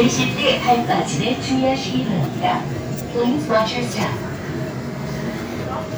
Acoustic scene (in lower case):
subway train